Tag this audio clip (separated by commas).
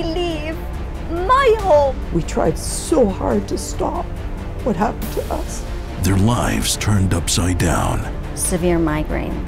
Speech, Music